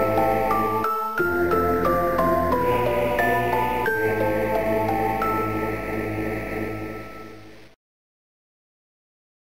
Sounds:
Music

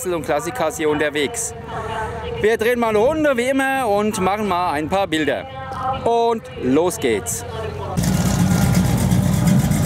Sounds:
Speech, Car passing by

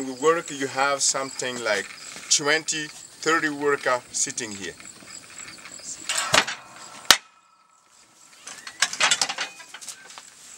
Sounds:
Speech, outside, rural or natural

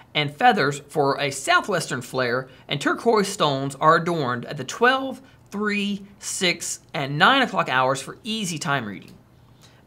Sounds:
Speech

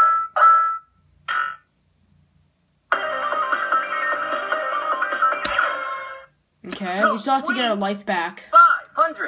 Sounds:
inside a small room, Music, Speech

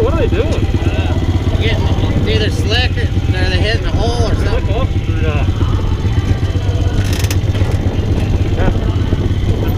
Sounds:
Speech, Vehicle

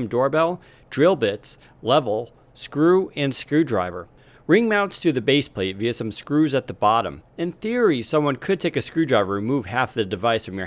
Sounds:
Speech

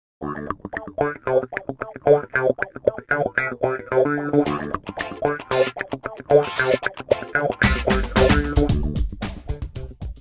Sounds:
Music

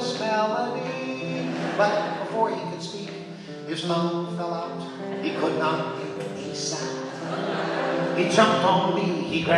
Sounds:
Singing, Music

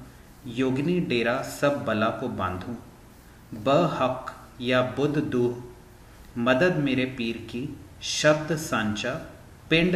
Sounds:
Speech

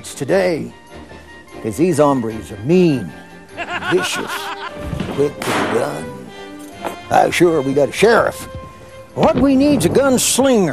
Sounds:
Music, Speech

